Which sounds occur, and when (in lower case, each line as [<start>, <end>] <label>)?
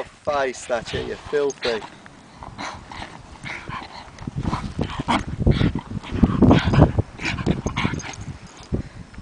[0.00, 0.14] male speech
[0.00, 9.21] wind noise (microphone)
[0.27, 0.35] tick
[0.29, 1.91] male speech
[0.61, 1.96] animal
[1.35, 1.62] generic impact sounds
[2.05, 2.15] tick
[2.33, 5.32] animal
[4.20, 4.29] tick
[5.50, 5.92] animal
[6.08, 8.25] animal
[7.68, 8.35] rattle
[9.13, 9.21] tick